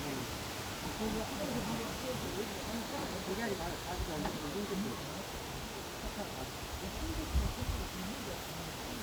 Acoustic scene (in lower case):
park